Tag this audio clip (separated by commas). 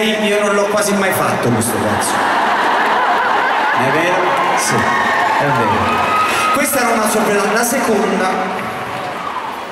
Speech